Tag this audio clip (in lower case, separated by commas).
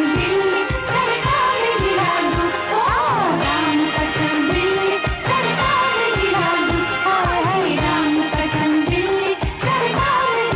music of asia, singing, music